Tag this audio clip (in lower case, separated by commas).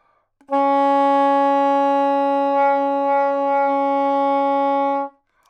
music, musical instrument, wind instrument